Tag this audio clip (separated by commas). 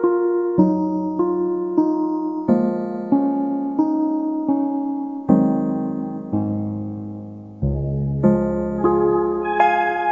Music